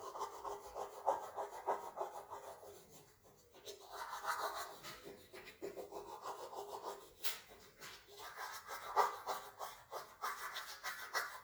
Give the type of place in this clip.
restroom